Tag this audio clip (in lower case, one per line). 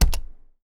typing
domestic sounds